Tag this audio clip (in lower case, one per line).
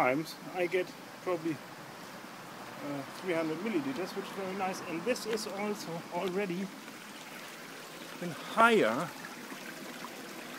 speech